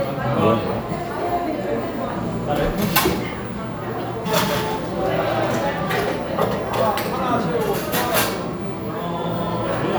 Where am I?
in a cafe